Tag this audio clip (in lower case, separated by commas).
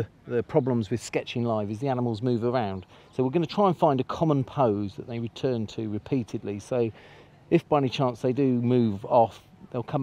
speech